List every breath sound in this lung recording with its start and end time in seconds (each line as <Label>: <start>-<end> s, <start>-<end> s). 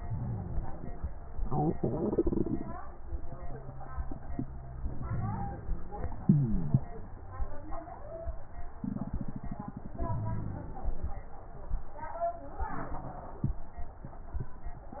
Inhalation: 0.00-0.97 s, 4.92-6.12 s, 10.00-11.19 s